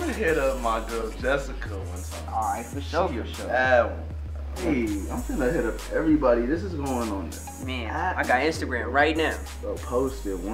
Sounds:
Speech, Music

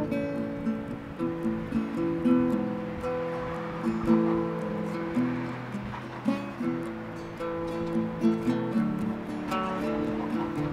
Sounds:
Music

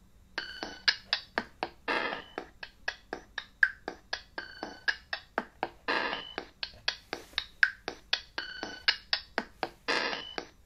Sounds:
Music, Synthesizer

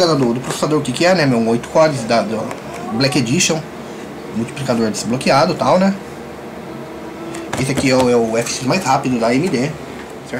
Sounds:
Speech

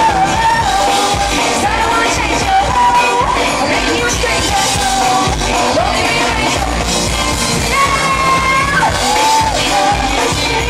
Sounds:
Singing, Music

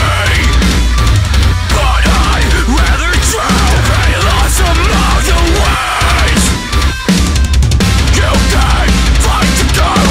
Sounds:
Music

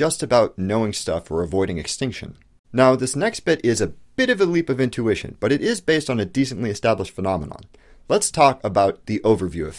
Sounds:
monologue, Speech

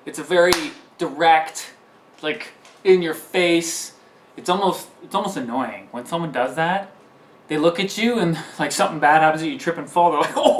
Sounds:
Speech

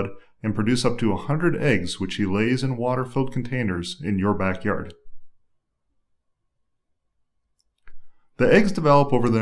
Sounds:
Speech, monologue

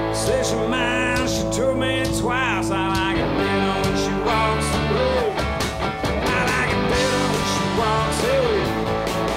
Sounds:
Jazz, Rhythm and blues, Music

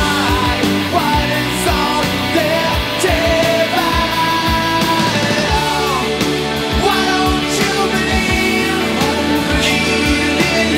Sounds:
Singing, Punk rock, Music

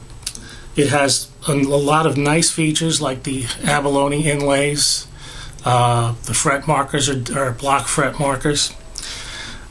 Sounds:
Speech

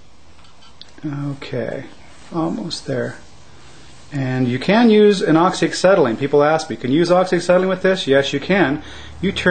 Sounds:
Speech

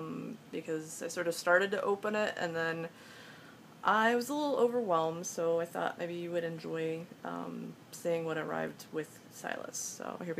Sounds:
Speech

